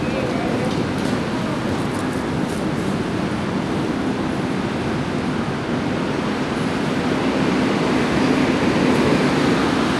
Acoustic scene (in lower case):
subway station